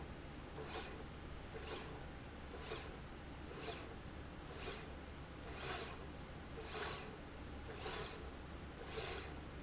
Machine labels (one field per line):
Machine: slide rail